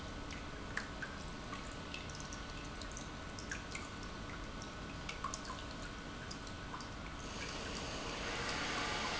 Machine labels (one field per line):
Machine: pump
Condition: normal